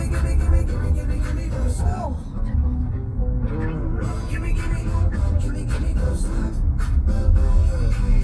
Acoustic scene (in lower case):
car